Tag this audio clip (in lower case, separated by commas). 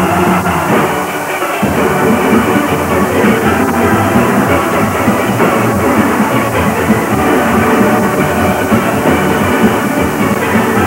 drum, music